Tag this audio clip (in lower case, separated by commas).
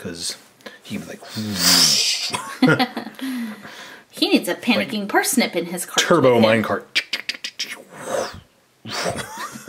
inside a small room, speech